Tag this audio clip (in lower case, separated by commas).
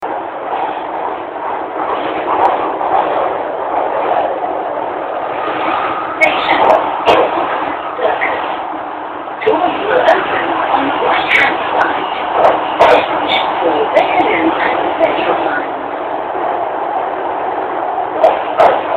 rail transport, vehicle, metro